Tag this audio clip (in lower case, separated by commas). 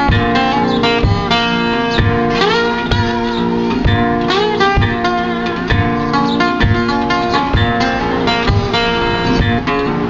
musical instrument, plucked string instrument, acoustic guitar, strum, guitar, music